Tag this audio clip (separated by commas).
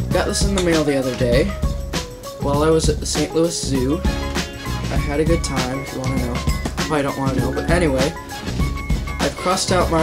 Speech, Music